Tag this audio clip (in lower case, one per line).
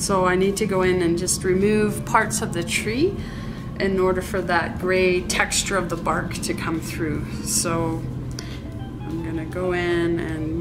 speech